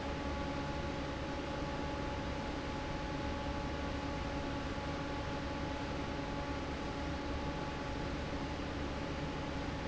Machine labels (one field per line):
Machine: fan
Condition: normal